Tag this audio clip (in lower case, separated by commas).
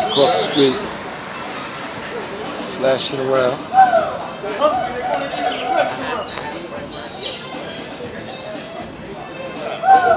music, bird, speech